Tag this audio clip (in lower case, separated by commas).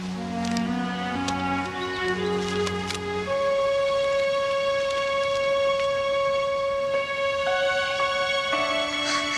animal, music